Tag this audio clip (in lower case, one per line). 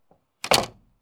slam
door
domestic sounds